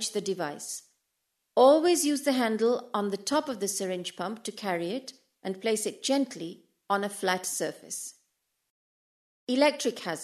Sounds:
Speech

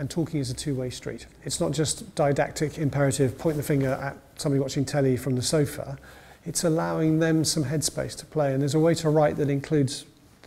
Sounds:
Speech

